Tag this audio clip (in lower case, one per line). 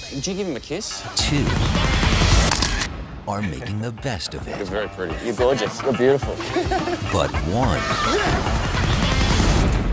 speech
music